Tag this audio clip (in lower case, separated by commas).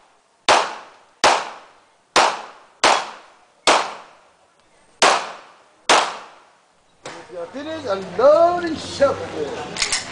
outside, rural or natural, speech